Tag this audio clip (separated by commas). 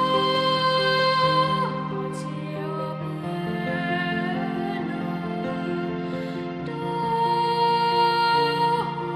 Music, Male singing